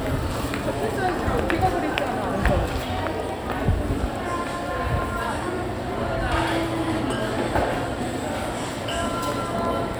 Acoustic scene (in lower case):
crowded indoor space